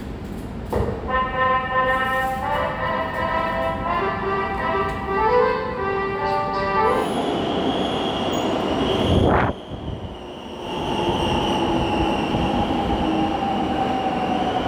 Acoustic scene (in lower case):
subway station